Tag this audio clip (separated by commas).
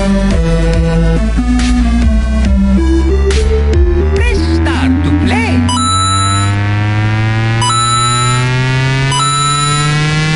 Electronic music, Music, Dubstep, Speech